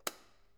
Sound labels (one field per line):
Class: switch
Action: being turned off